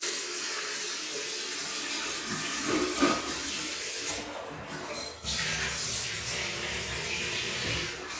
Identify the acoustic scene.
restroom